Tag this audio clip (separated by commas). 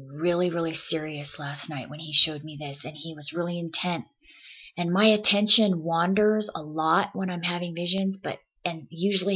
Speech